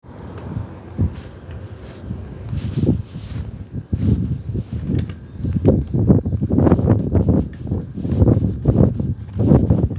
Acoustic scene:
residential area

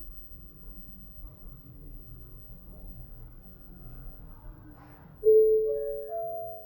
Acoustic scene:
elevator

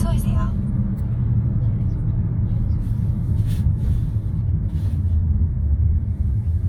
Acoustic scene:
car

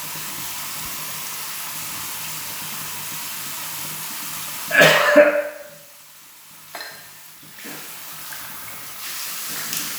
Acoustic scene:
restroom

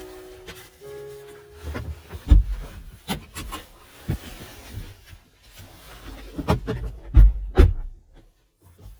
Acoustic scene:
car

